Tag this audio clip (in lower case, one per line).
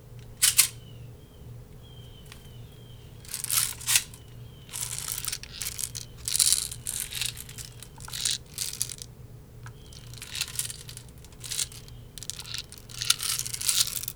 rattle